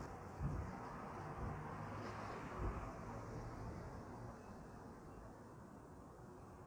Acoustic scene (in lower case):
street